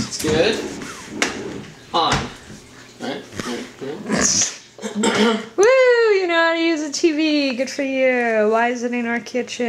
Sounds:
inside a small room
speech

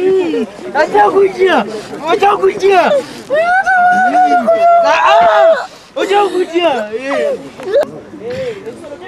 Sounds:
outside, rural or natural
speech
chatter

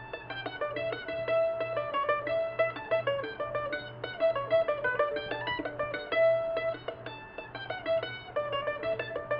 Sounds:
music

